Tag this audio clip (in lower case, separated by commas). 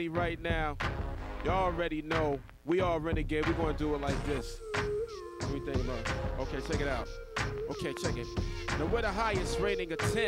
music, speech